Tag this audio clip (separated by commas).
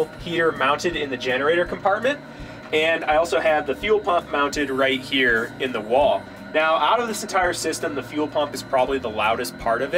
Speech